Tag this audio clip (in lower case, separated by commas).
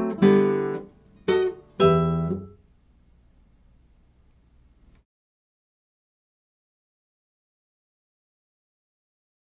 musical instrument, music, acoustic guitar, strum, electric guitar, guitar, plucked string instrument